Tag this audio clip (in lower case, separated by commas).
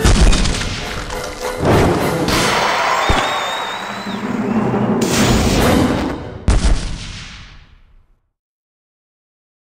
music